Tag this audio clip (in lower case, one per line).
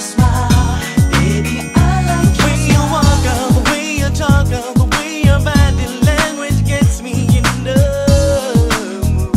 rhythm and blues
pop music
singing
music